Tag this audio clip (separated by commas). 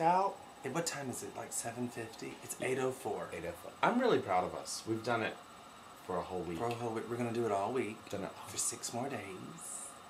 Speech